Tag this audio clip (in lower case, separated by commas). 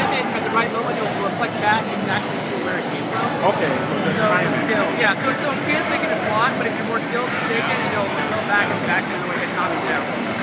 speech, music